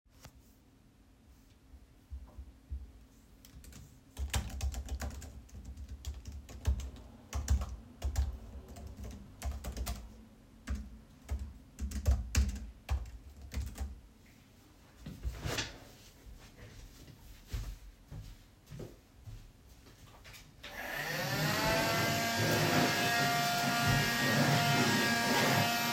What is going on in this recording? I was typing on my keyboard, then stood up and walked to the vacuum cleaner and started cleaning.